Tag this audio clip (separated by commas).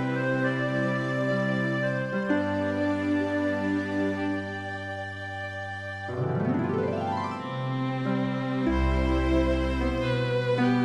Musical instrument, playing electronic organ, Electronic organ, Piano, Music, Keyboard (musical)